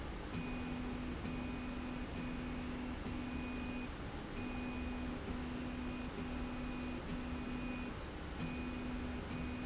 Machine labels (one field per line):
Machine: slide rail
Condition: normal